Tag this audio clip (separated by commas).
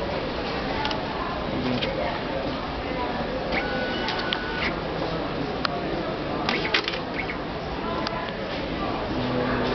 Speech, Printer